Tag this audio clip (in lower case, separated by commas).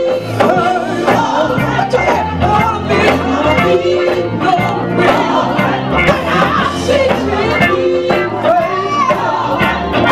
music, female singing